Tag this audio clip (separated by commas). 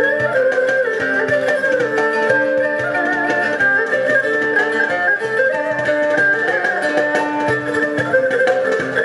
playing erhu